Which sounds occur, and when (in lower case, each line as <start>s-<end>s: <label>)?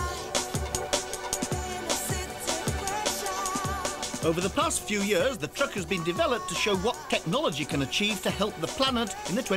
0.0s-0.3s: female singing
0.0s-9.5s: music
1.5s-4.1s: female singing
4.2s-9.5s: man speaking
4.7s-7.2s: female singing
8.6s-9.5s: female singing